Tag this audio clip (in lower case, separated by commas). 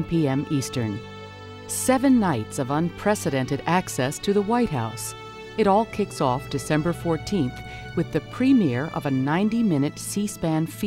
speech, music